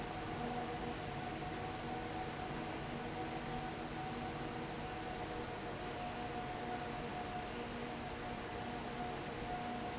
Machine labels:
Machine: fan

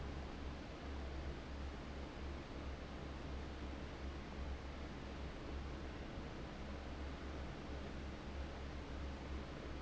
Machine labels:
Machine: fan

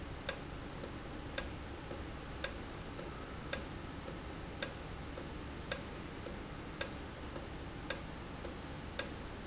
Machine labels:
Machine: valve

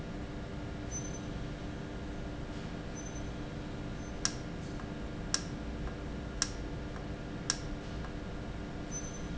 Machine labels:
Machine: valve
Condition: normal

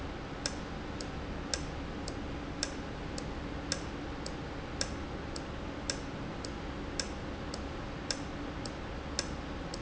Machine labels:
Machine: valve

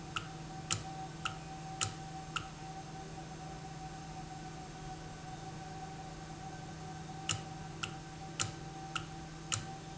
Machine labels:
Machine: valve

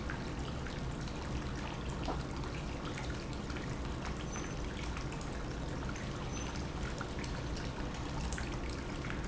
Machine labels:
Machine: pump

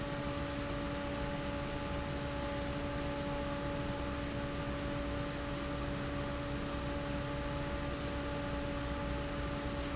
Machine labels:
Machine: fan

